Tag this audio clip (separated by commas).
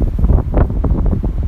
Wind